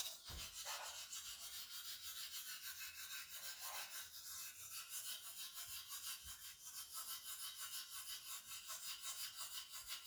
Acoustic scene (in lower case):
restroom